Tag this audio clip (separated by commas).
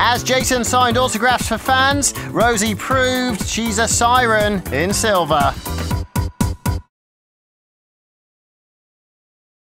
Speech, Music